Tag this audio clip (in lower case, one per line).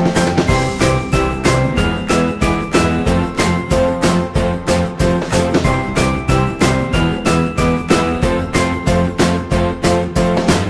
music